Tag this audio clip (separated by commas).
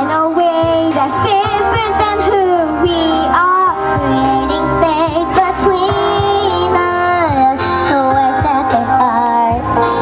Music